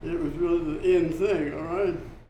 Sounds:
Speech, Human voice, man speaking

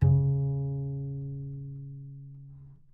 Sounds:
Musical instrument, Music, Bowed string instrument

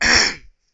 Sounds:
Respiratory sounds, Cough

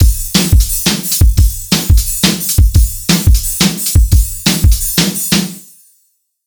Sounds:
Drum, Drum kit, Music, Percussion, Musical instrument

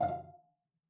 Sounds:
Bowed string instrument, Music, Musical instrument

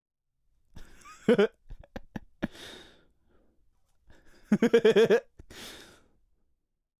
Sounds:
Human voice, Laughter

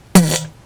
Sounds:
Fart

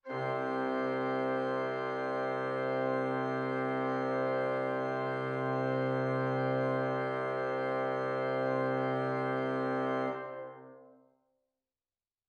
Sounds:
Organ, Musical instrument, Keyboard (musical), Music

